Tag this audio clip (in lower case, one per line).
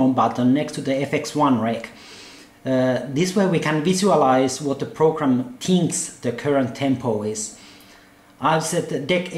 speech